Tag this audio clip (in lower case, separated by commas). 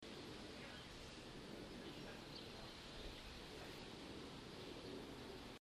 animal, bird, wild animals